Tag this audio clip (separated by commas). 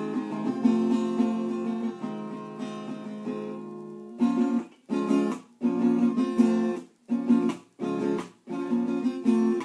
Strum, Music, Guitar, Musical instrument